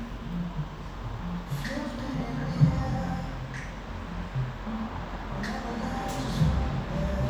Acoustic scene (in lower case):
cafe